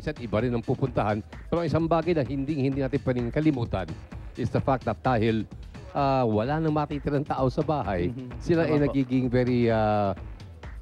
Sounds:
speech
music

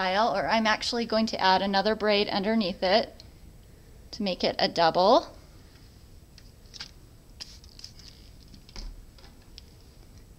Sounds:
inside a small room
speech

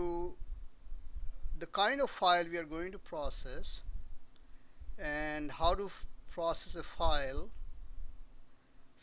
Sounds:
speech

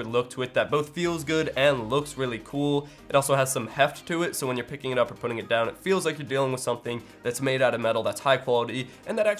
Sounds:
speech
music

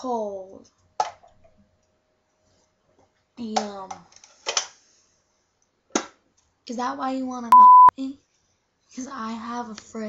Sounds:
speech

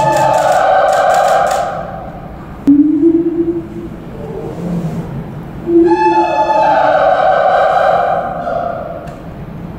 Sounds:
gibbon howling

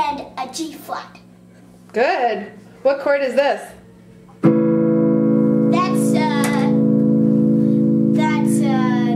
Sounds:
guitar
inside a small room
speech
music
kid speaking

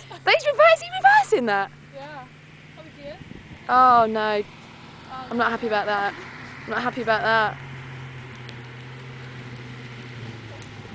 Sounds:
motor vehicle (road)
speech
vehicle
car
car passing by

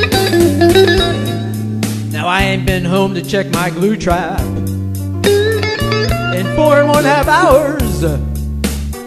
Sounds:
music

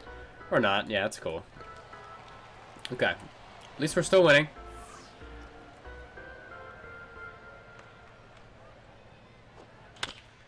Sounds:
speech
music

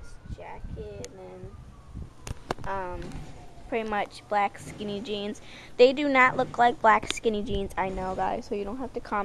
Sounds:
speech

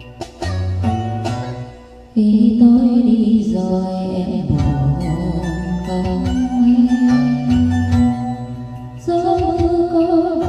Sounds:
music
female singing

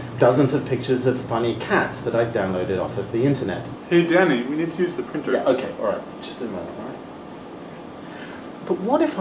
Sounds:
speech

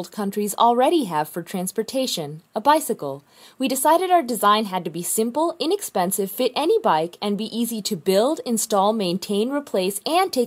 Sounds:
speech

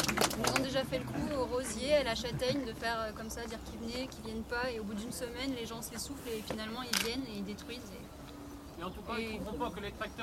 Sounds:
speech

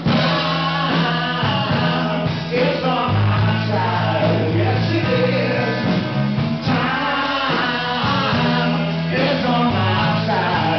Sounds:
music

